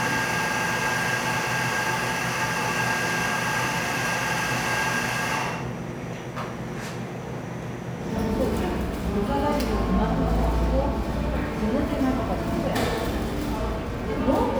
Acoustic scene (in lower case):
cafe